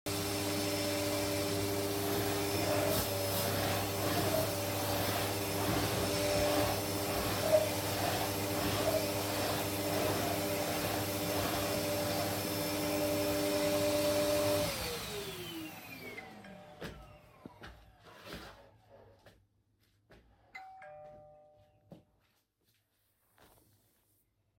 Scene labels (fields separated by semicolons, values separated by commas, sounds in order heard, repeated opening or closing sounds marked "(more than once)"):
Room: living room; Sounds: vacuum cleaner, bell ringing, footsteps